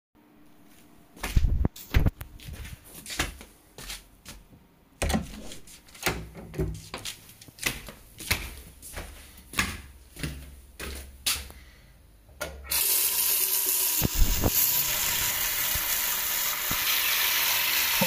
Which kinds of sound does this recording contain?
footsteps, door, running water